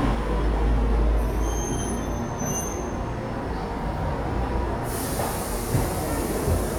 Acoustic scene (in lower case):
subway station